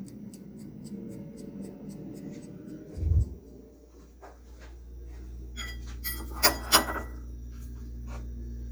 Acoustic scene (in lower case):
kitchen